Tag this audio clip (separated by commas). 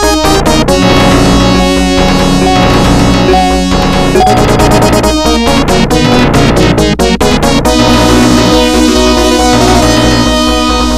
Music